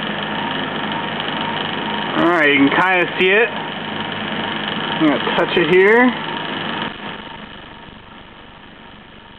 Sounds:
speech

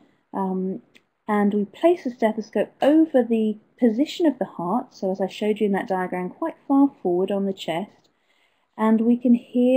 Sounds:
speech

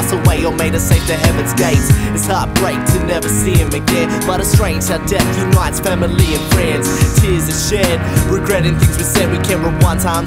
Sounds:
music

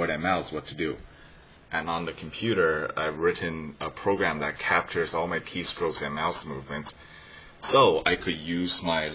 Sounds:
speech

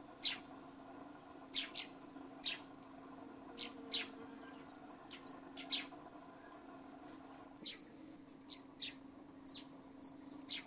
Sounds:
barn swallow calling

